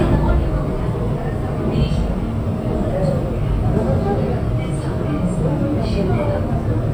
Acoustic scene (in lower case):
subway train